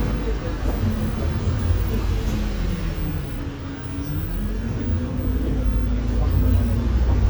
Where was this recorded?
on a bus